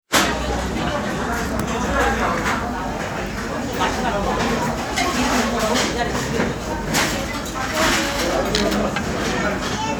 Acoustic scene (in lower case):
restaurant